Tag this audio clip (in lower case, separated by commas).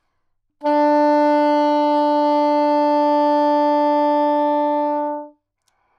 musical instrument, music, wind instrument